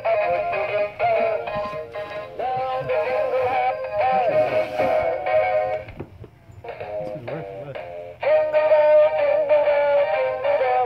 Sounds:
speech
music

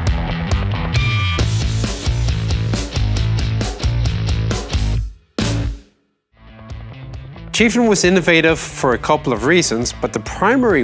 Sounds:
music
speech

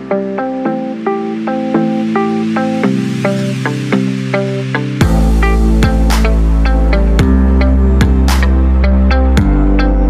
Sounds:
music

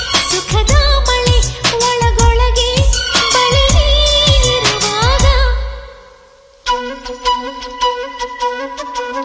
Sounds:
woodwind instrument
flute

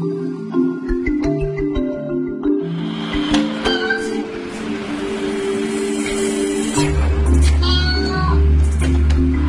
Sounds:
music

